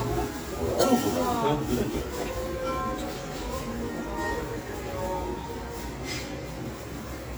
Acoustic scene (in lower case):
restaurant